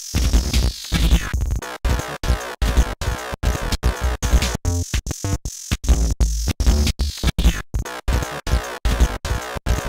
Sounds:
Music, Electronic music

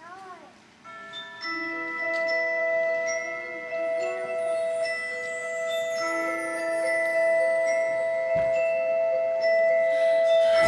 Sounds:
Mallet percussion, Percussion, Glockenspiel, xylophone

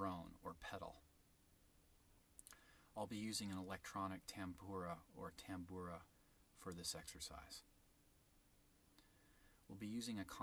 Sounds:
Speech

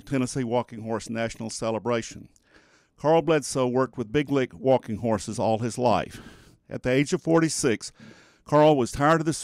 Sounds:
Speech

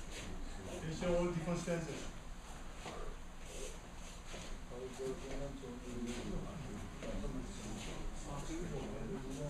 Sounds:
Speech

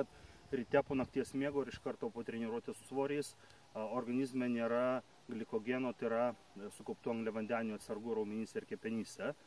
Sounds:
Speech

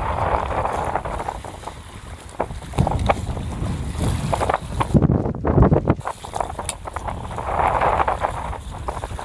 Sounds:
sailing ship, Water vehicle, Vehicle, sailing

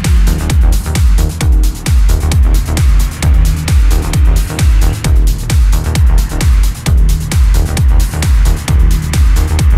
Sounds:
Music, Vehicle

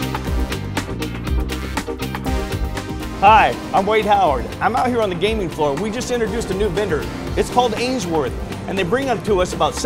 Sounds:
Speech, Music

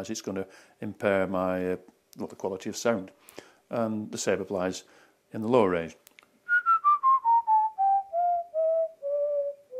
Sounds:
Whistling

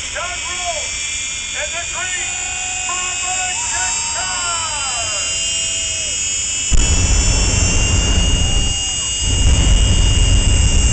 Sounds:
Speech

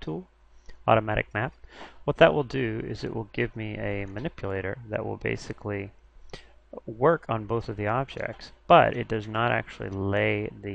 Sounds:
Speech

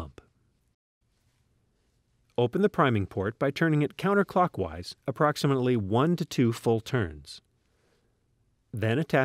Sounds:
Speech

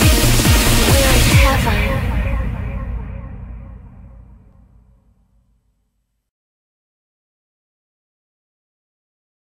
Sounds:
Music

